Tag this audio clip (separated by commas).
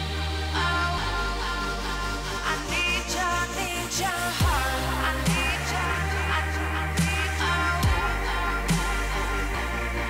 Dubstep, Music